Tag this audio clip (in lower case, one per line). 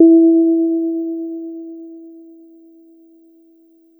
musical instrument
music
keyboard (musical)
piano